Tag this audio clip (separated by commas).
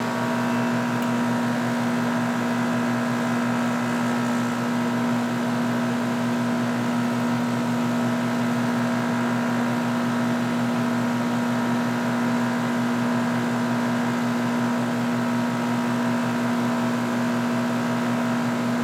Mechanisms